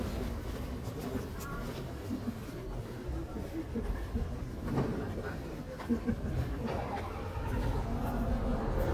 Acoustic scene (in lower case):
residential area